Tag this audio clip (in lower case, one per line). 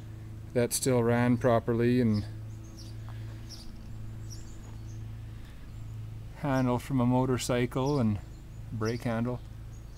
speech